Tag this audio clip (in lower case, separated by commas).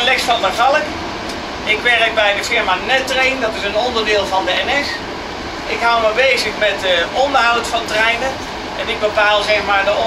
speech